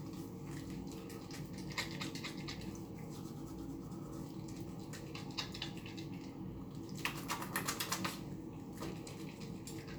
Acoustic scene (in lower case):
restroom